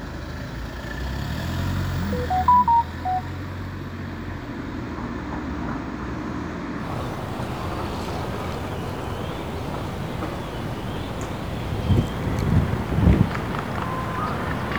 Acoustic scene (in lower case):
residential area